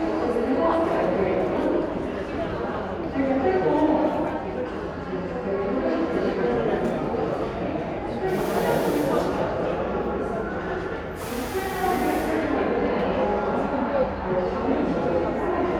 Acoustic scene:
crowded indoor space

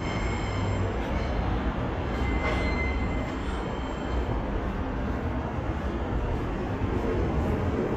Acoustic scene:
subway station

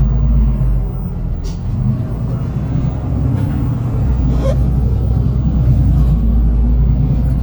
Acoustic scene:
bus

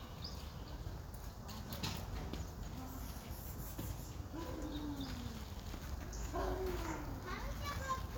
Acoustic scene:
park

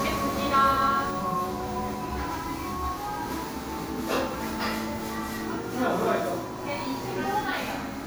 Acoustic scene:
crowded indoor space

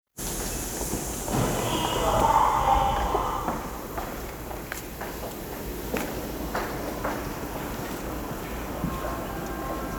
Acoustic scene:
subway station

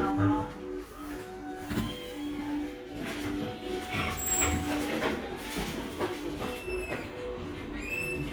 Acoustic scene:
crowded indoor space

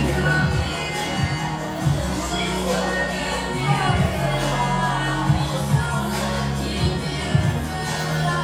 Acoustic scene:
cafe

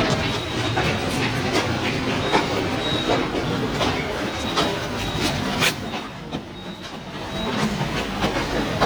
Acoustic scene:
subway station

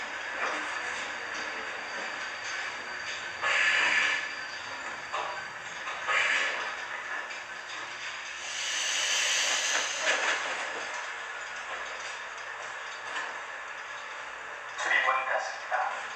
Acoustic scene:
subway train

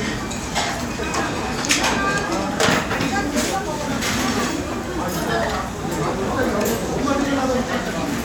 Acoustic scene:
restaurant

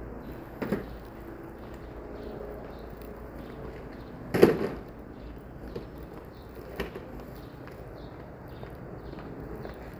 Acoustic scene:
residential area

